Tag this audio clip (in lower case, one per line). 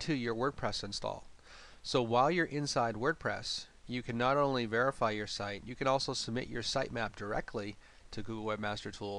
speech